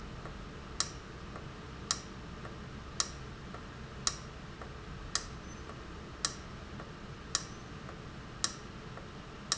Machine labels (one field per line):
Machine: valve